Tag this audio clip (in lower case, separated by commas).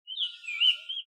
animal, wild animals, bird